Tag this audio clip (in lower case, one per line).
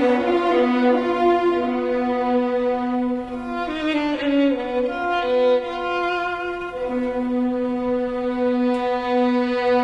music